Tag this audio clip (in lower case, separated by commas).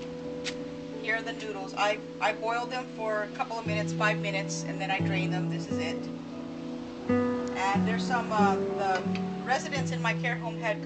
music, speech